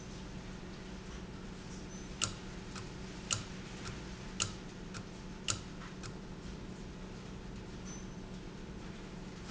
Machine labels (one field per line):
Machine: valve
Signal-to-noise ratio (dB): 0 dB